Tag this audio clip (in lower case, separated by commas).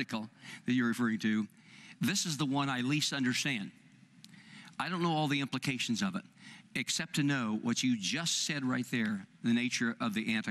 speech